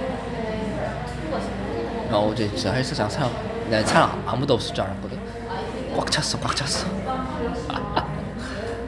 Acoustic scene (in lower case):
cafe